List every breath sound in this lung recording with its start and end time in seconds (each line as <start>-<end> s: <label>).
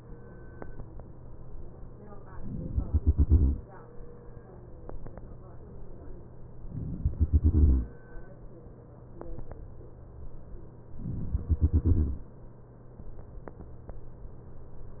2.83-3.62 s: exhalation
2.83-3.62 s: crackles
6.75-7.85 s: exhalation
6.75-7.85 s: crackles
11.30-12.13 s: exhalation
11.30-12.13 s: crackles